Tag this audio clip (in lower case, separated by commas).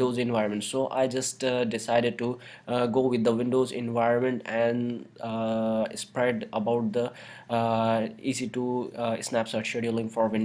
speech